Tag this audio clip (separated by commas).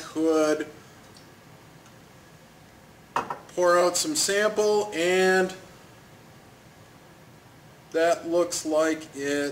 Speech